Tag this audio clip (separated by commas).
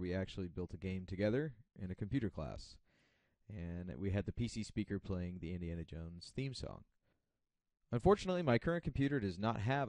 Speech